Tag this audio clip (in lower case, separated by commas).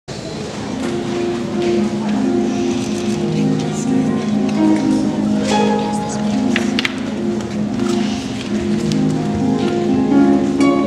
playing harp